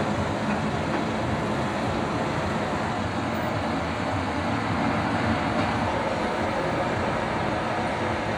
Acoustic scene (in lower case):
street